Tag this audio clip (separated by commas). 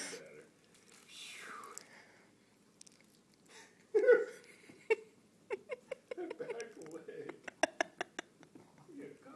Speech